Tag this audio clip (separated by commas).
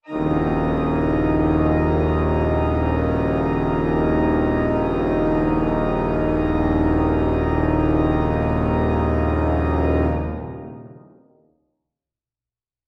Keyboard (musical), Music, Musical instrument, Organ